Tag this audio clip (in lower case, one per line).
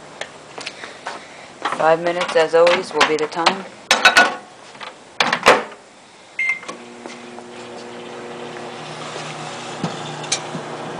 speech